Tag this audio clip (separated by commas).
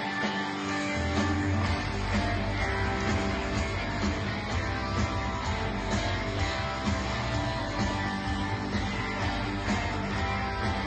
Music